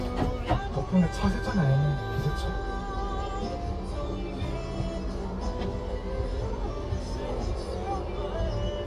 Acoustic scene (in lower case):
car